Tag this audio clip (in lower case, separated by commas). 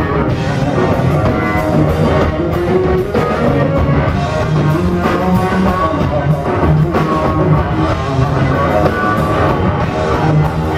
inside a public space, music, guitar, musical instrument